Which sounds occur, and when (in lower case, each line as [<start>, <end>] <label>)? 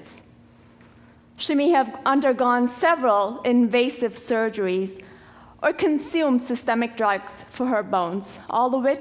[0.00, 0.22] generic impact sounds
[0.00, 9.00] mechanisms
[0.74, 0.84] generic impact sounds
[0.90, 1.16] breathing
[1.35, 4.92] female speech
[4.93, 5.59] breathing
[4.94, 5.03] human sounds
[5.61, 9.00] female speech